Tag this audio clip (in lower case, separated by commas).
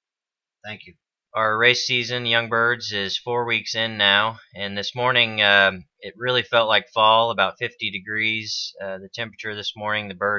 speech